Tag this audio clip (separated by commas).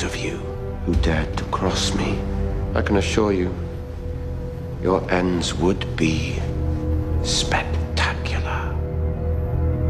Speech, inside a large room or hall, Music